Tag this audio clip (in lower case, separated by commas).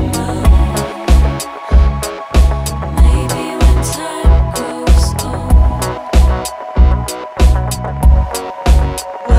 music